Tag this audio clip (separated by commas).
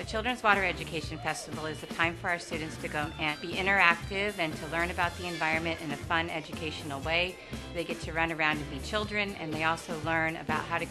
Speech, Music